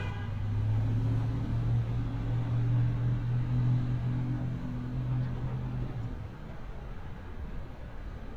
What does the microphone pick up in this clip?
engine of unclear size, car horn